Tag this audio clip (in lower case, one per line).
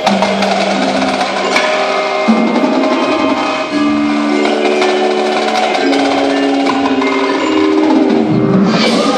wood block
music